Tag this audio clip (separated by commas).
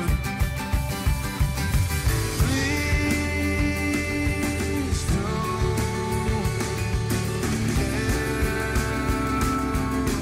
Music, Grunge, Rock music